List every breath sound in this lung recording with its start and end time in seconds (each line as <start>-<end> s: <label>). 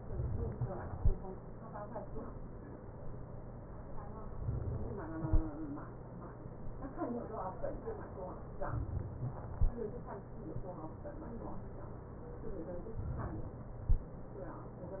8.64-9.60 s: inhalation
13.00-13.84 s: inhalation